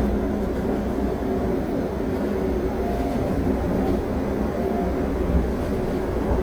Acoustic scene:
subway train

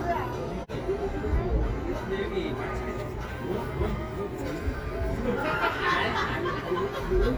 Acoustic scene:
residential area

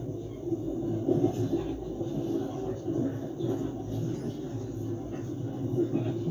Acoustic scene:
subway train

